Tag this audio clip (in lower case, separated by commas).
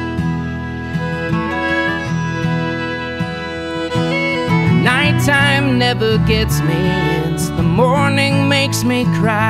music